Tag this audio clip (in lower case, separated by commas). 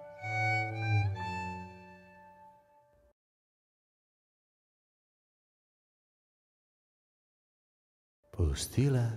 speech, music